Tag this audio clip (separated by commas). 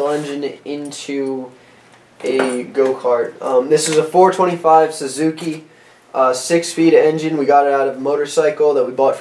Speech